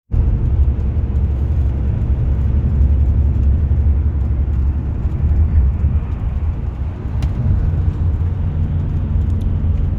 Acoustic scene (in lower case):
car